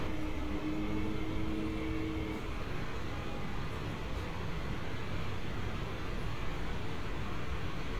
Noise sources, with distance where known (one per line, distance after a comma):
engine of unclear size, far